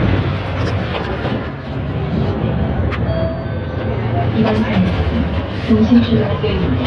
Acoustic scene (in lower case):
bus